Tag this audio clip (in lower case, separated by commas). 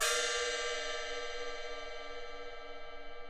musical instrument, cymbal, crash cymbal, percussion, music